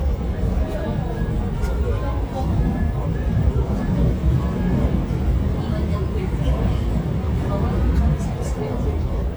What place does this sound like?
subway train